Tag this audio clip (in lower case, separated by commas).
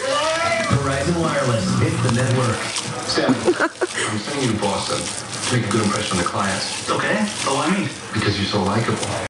music, stream, speech